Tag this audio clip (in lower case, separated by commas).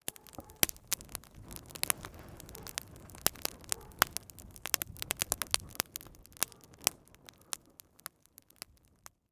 fire